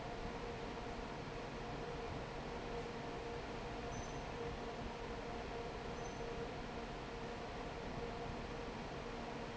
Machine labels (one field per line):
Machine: fan